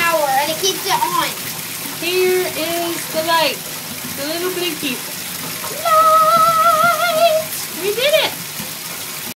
A young child is talking, as the woman offers him something and they sing